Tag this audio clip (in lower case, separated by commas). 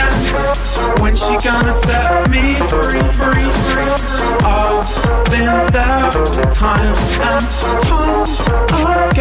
electronic music, music, dubstep